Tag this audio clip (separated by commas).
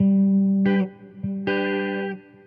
Plucked string instrument, Guitar, Musical instrument, Electric guitar, Music